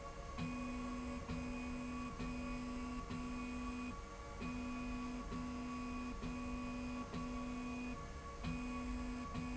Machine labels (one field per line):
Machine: slide rail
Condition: normal